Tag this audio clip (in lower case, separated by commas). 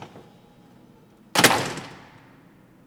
home sounds, slam, door